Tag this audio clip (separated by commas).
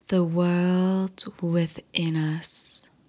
Human voice, Female speech, Speech